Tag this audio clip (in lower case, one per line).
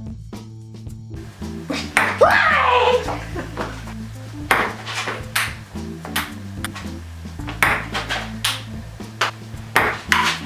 playing table tennis